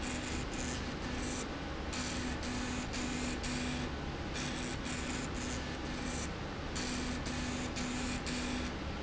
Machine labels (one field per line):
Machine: slide rail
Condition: abnormal